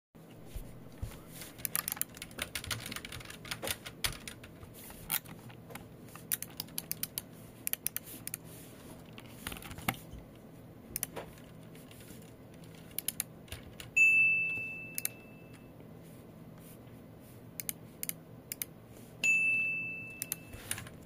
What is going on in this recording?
I sat at a desk and used the computer mouse while typing on the keyboard. While working, my phone produced notification sounds twice. I continued typing and using the mouse.